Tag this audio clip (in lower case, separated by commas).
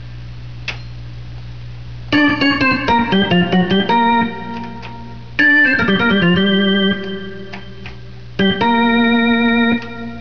music, hammond organ